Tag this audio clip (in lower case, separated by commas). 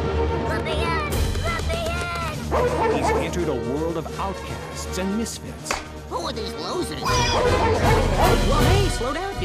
music, speech